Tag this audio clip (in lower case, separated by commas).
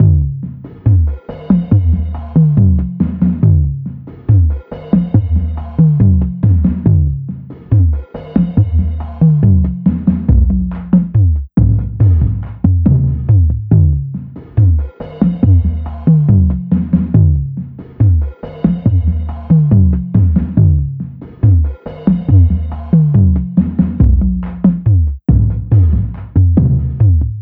percussion, musical instrument, drum kit, music